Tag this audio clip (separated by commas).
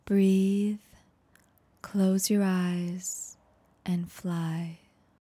woman speaking, Speech, Human voice